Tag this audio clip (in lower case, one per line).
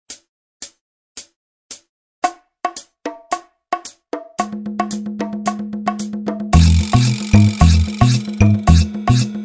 wood block